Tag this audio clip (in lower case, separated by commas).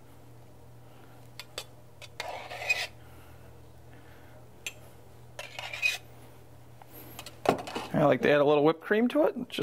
inside a small room, speech